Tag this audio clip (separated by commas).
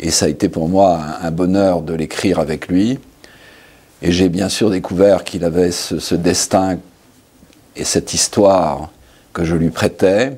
Speech